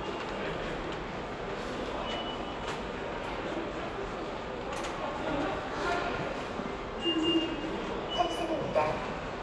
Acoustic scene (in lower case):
subway station